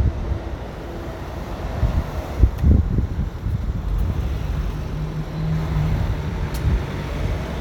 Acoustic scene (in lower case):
residential area